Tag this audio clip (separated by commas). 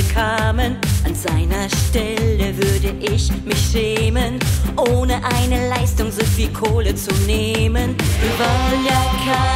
Music